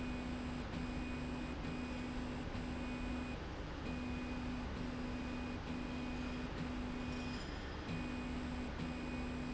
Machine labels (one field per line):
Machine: slide rail